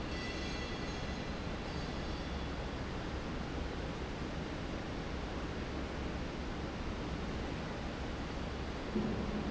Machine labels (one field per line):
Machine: fan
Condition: normal